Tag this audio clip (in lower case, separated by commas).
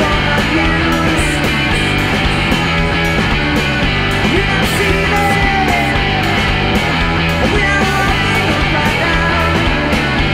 funk, music